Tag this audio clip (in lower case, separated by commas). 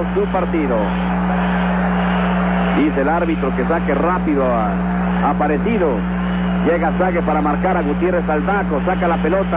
speech